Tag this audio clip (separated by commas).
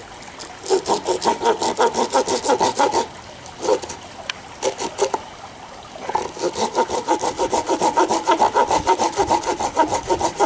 Liquid